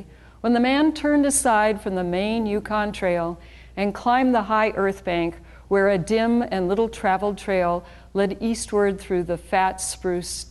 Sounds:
speech

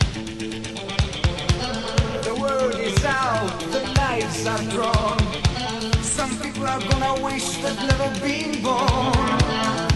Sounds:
music

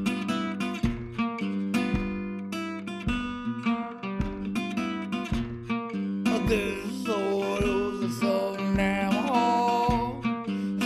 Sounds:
music, lullaby

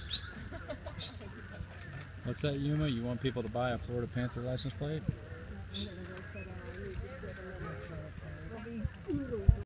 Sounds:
speech

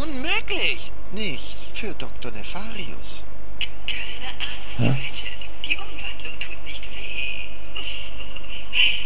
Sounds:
speech

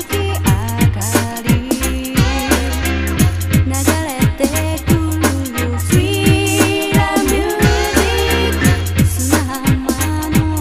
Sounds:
music

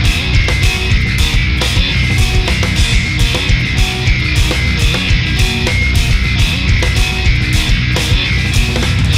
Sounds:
musical instrument, guitar, strum, plucked string instrument, acoustic guitar, music

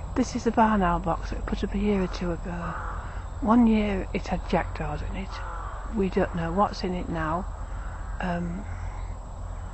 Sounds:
bird, speech, animal

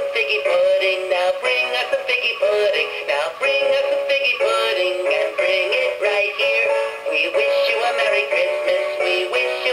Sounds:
synthetic singing

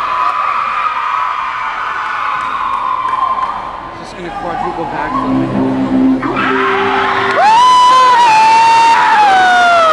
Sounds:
speech, music, inside a public space, inside a large room or hall, cheering

